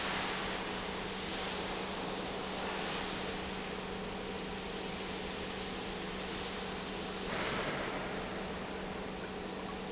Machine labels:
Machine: pump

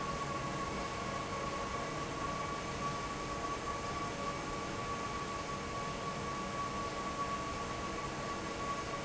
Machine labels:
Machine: fan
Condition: normal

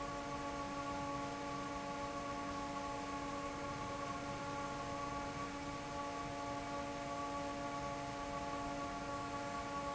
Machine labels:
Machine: fan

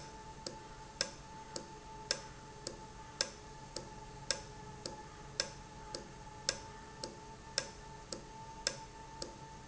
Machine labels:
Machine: valve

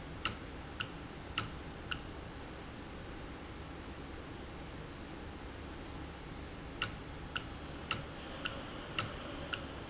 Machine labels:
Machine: valve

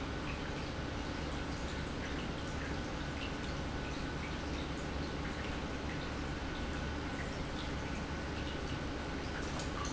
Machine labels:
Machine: pump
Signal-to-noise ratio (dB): -6 dB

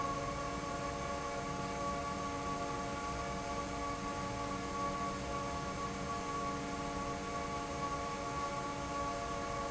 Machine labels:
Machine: fan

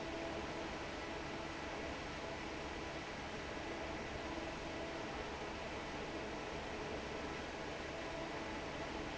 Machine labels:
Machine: fan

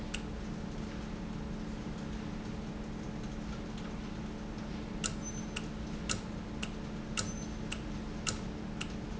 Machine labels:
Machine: valve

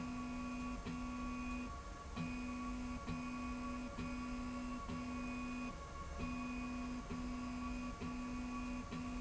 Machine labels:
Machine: slide rail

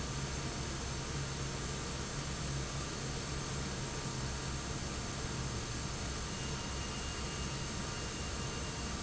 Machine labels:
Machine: fan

